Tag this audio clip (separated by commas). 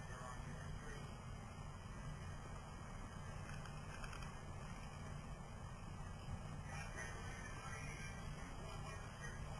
Speech